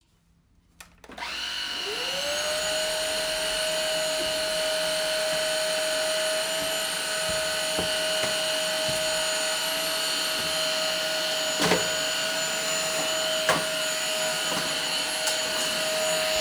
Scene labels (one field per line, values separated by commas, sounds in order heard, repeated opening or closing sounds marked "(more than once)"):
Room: living room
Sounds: vacuum cleaner, footsteps